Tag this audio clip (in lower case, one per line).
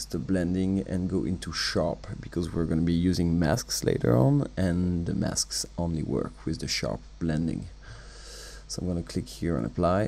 speech